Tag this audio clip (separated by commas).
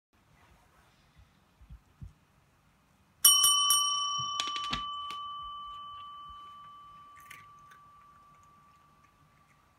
Domestic animals, Bicycle bell, inside a small room